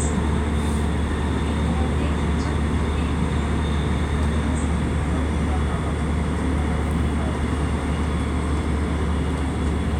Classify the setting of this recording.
subway train